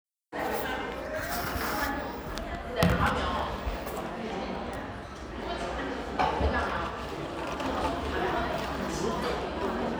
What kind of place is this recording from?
crowded indoor space